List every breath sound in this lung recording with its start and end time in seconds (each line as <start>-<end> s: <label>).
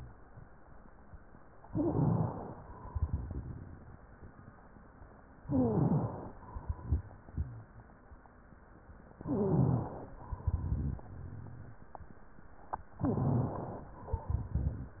1.66-2.36 s: stridor
1.66-2.56 s: inhalation
2.84-3.98 s: exhalation
2.86-3.62 s: crackles
5.38-6.39 s: inhalation
5.47-6.22 s: stridor
6.45-7.79 s: exhalation
6.47-7.53 s: crackles
9.17-9.93 s: stridor
9.17-10.09 s: inhalation
10.15-11.85 s: exhalation
10.21-11.01 s: crackles
12.98-13.63 s: stridor
13.02-13.94 s: inhalation
13.98-15.00 s: exhalation
14.08-14.88 s: crackles